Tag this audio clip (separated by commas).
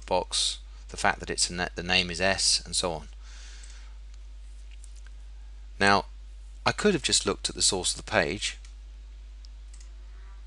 Speech